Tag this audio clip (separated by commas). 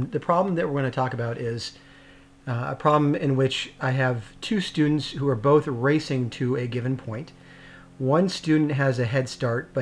Speech